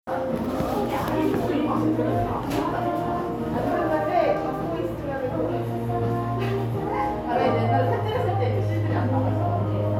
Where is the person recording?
in a cafe